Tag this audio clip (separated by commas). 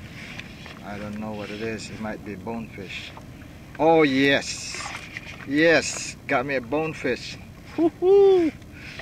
Vehicle, Boat, Speech, canoe